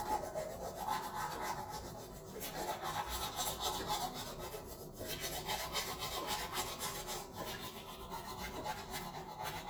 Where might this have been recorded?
in a restroom